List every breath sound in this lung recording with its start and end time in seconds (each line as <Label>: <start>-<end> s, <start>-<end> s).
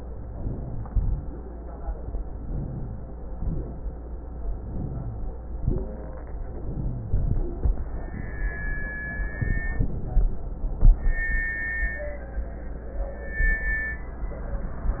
Inhalation: 0.00-0.86 s, 2.20-3.15 s, 4.36-5.31 s, 6.30-7.09 s
Exhalation: 0.86-1.37 s, 3.25-3.81 s, 5.43-6.00 s, 7.12-7.68 s
Wheeze: 0.30-0.85 s, 2.49-3.04 s, 4.75-5.29 s, 6.70-7.25 s